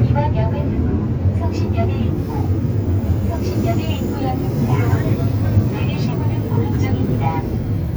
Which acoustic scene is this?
subway train